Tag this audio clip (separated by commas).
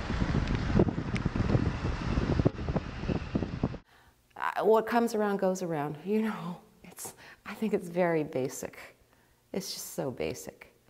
Wind, Wind noise (microphone)